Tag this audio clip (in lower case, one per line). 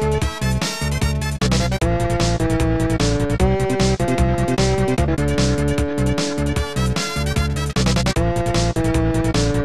soundtrack music
music
rhythm and blues
blues